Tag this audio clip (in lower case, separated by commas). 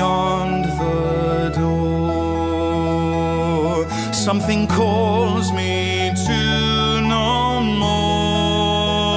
music